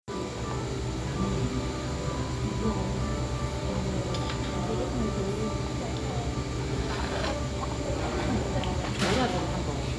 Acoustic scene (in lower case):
cafe